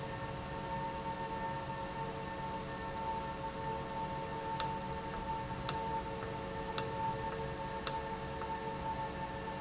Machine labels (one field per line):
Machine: valve